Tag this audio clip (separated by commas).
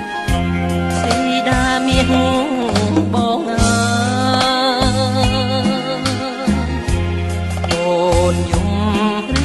Music